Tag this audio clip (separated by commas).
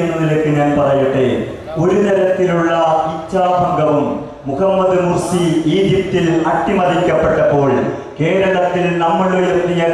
Speech, Narration, Male speech